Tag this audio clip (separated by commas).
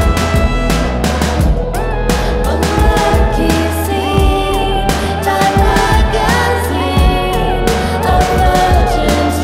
Music